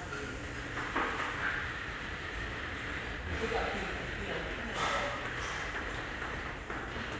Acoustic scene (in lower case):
restaurant